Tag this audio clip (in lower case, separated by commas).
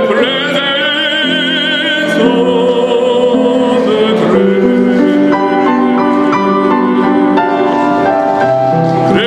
male singing, music